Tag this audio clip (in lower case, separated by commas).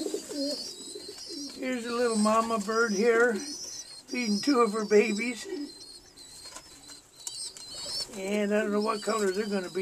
bird, speech, dove